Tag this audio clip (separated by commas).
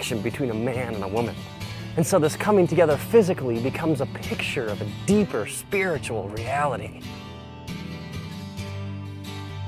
Speech, Music